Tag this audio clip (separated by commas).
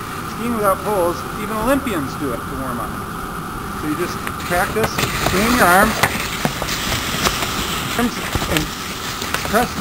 skiing